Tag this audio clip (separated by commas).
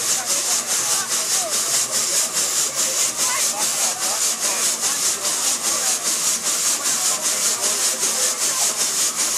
Speech, Engine